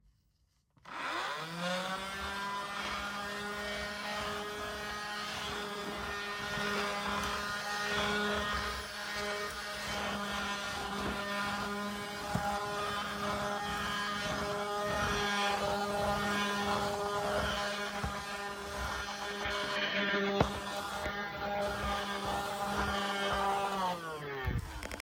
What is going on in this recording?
I turned on the vacuum cleaner and started cleaning the bedroom.